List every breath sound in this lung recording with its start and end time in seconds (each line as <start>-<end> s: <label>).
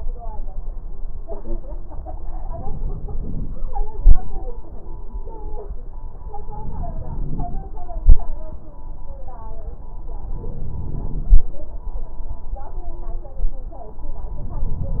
2.49-3.68 s: inhalation
3.97-4.25 s: exhalation
6.51-7.70 s: inhalation
6.51-7.70 s: crackles
8.03-8.32 s: exhalation
10.24-11.43 s: inhalation
10.24-11.43 s: crackles
14.34-15.00 s: inhalation
14.34-15.00 s: crackles